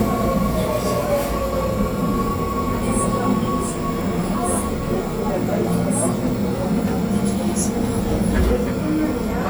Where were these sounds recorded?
on a subway train